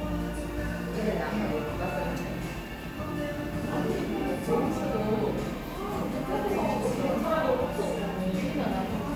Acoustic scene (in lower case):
crowded indoor space